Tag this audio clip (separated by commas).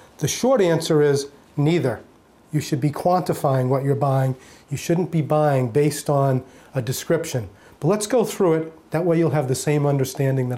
Speech